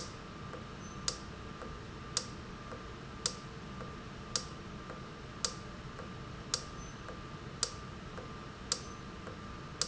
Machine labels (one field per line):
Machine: valve